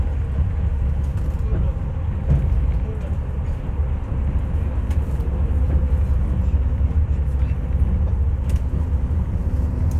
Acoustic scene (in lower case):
bus